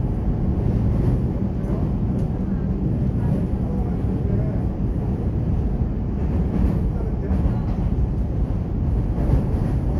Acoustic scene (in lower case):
subway train